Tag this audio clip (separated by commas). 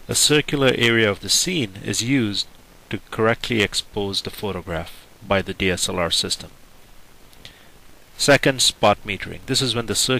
Speech